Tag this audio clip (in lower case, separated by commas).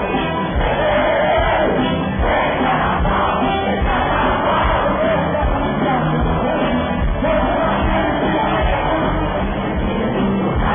music of latin america, music